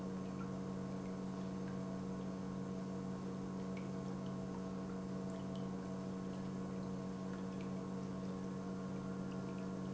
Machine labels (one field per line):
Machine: pump